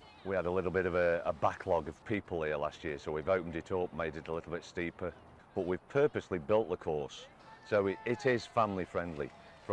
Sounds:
Speech

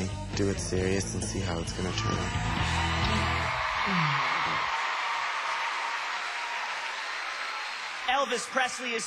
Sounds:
Music, Speech

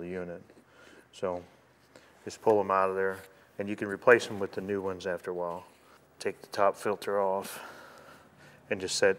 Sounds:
Speech

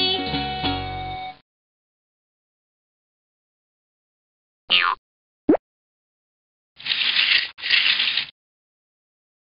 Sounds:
Music

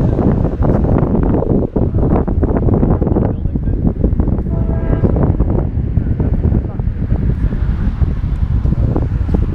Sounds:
Wind, Wind noise (microphone)

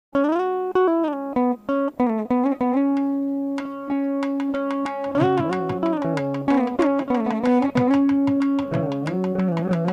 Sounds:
Musical instrument, Music, Carnatic music, inside a large room or hall

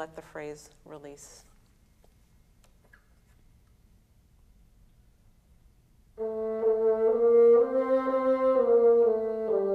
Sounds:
playing bassoon

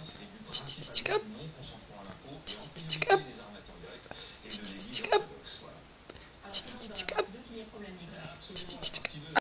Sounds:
Speech

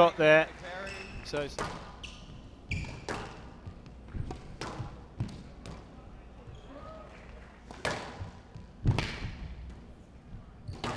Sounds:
playing squash

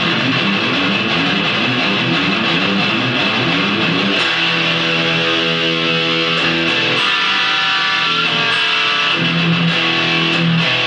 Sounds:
Music

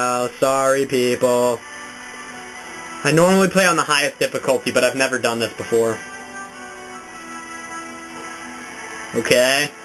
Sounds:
Music, Speech

